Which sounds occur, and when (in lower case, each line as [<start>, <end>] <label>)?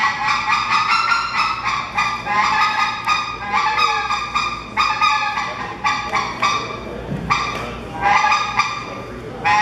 [0.00, 6.88] duck call (hunting tool)
[0.00, 9.61] mechanisms
[5.46, 6.25] man speaking
[6.75, 7.37] man speaking
[7.31, 7.76] duck call (hunting tool)
[7.92, 9.07] duck call (hunting tool)
[8.80, 9.61] man speaking